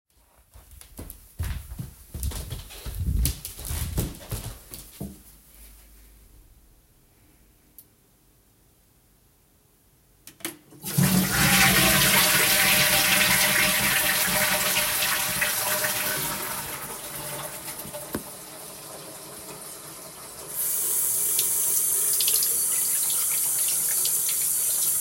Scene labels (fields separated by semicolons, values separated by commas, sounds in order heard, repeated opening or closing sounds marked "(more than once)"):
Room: hallway, bathroom; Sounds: footsteps, toilet flushing, running water